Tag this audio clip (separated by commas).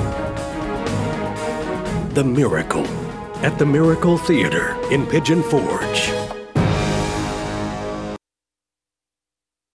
Music, Speech